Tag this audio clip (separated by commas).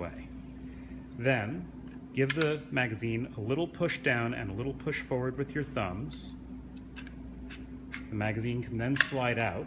Tools, Speech